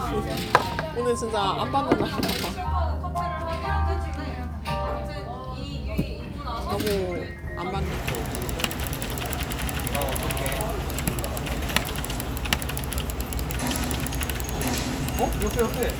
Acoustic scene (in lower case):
crowded indoor space